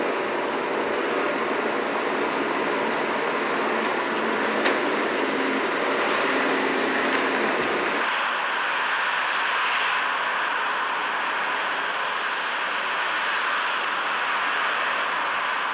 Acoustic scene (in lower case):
street